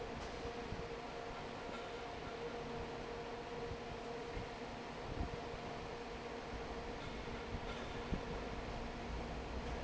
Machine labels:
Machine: fan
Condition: normal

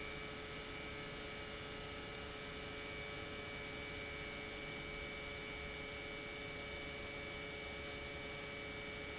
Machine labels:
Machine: pump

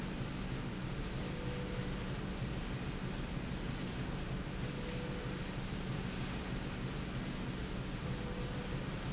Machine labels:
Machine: slide rail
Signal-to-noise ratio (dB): -6 dB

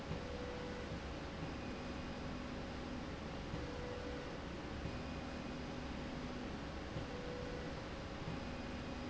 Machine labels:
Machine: slide rail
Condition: normal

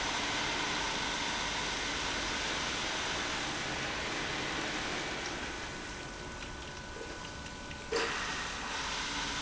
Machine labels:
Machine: pump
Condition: abnormal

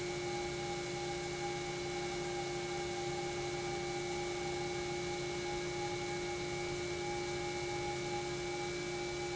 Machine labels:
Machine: pump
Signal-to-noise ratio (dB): -6 dB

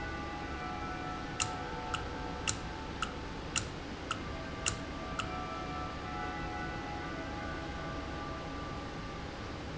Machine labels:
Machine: valve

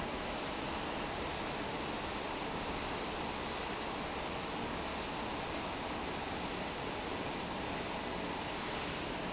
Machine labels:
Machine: fan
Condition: normal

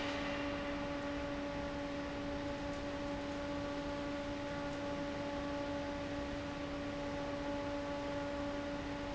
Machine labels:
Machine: fan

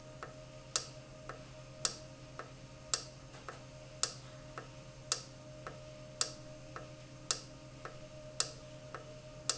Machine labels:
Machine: valve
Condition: normal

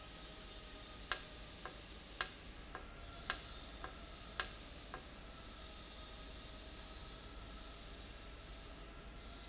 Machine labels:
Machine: valve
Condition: normal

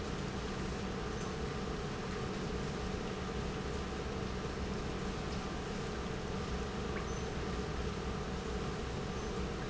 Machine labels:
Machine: pump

